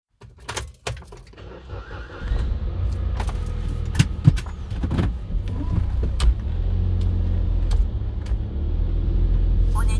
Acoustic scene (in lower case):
car